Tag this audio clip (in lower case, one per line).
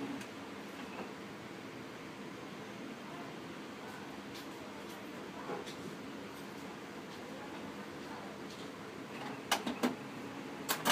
printer printing
printer
speech